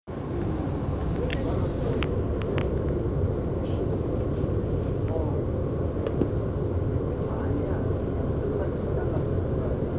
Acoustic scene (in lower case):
subway train